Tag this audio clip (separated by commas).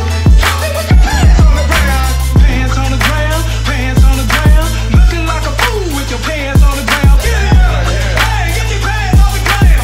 Music, Hip hop music, Rapping